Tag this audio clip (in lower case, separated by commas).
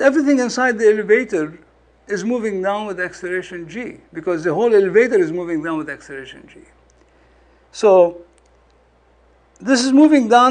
speech, monologue